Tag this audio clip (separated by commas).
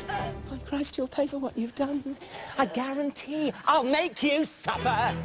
Music, Speech